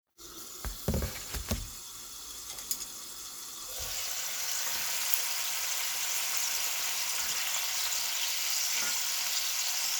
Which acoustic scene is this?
kitchen